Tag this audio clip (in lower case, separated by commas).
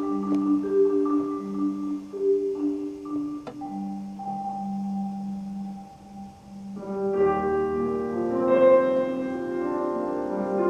playing marimba, musical instrument, marimba, music, percussion